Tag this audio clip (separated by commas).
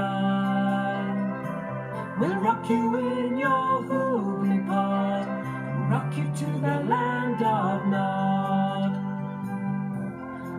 Music